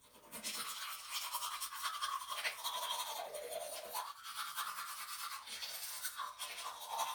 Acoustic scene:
restroom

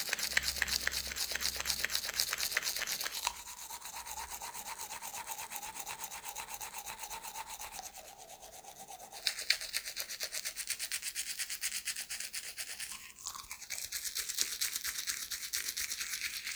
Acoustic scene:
restroom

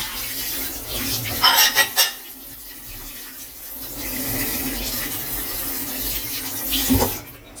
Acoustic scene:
kitchen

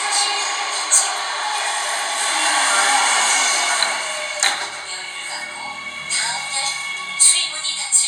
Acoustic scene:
subway train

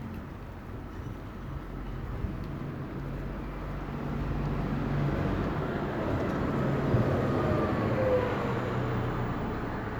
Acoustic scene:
residential area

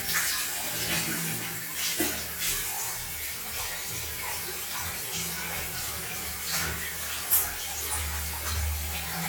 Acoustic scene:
restroom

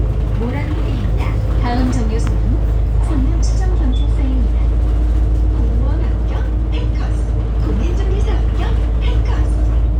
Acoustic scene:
bus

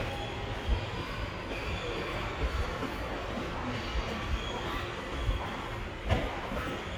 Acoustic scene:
subway station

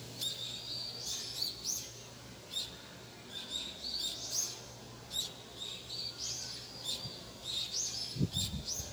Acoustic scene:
park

